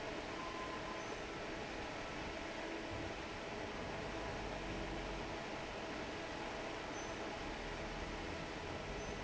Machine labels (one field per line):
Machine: fan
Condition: normal